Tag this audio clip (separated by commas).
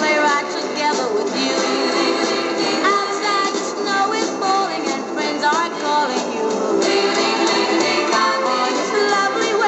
Music, Synthetic singing